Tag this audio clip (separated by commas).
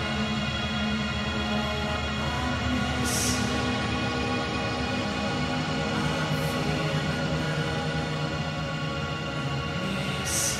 Music, Scary music